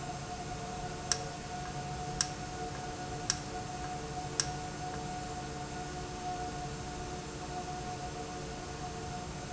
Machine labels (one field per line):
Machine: valve